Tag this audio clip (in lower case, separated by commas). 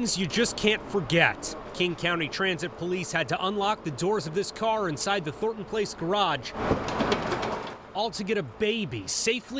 speech